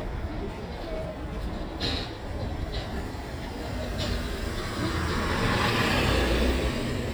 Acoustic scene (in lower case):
residential area